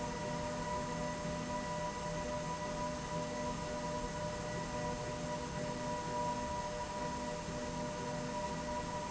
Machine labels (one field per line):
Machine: slide rail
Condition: normal